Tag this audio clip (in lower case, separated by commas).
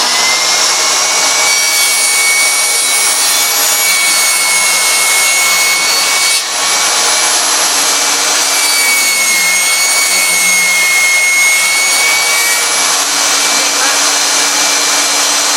sawing, tools